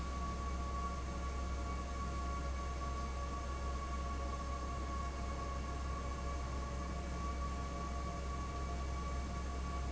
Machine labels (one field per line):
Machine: fan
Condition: abnormal